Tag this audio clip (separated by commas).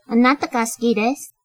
Human voice, Female speech, Speech